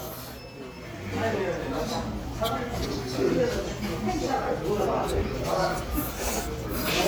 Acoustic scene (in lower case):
restaurant